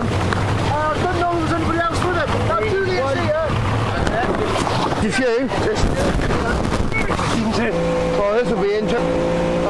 People speaking in a motorboat